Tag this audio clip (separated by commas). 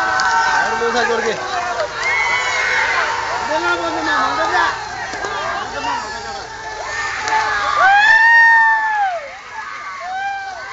Speech, outside, rural or natural